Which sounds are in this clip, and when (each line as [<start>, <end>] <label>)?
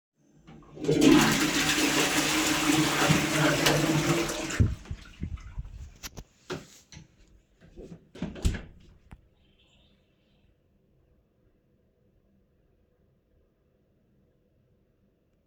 [0.66, 5.58] toilet flushing
[6.39, 7.10] light switch
[8.07, 9.29] door